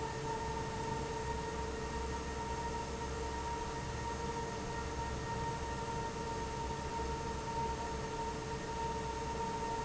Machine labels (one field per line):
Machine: fan